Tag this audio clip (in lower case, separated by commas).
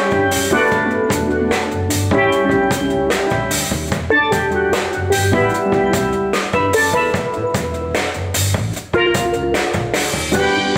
hi-hat, cymbal